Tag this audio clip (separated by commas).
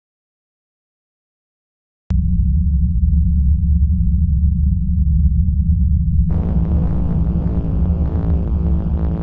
Music, Silence